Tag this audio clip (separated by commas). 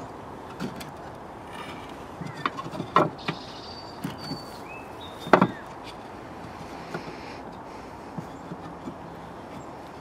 Animal